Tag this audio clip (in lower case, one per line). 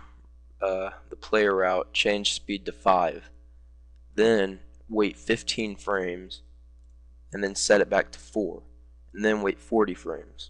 speech